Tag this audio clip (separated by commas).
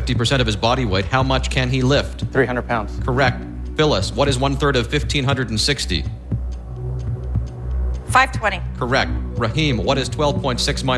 Music, Speech